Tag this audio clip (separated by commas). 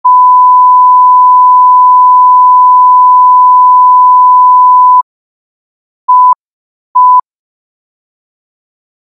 Beep, Sound effect